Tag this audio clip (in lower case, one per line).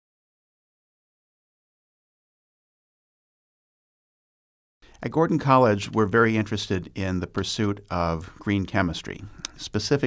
inside a small room
speech
silence